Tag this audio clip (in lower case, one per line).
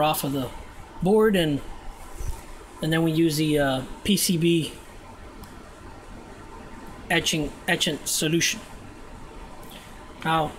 speech